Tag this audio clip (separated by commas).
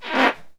Fart